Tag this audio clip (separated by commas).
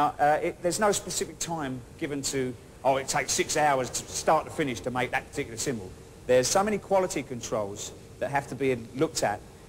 Speech